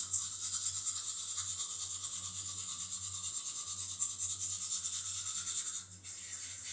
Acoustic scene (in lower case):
restroom